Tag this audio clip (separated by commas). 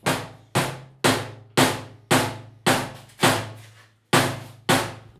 Tools